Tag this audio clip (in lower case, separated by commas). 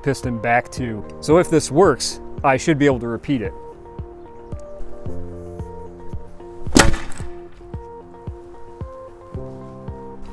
firing cannon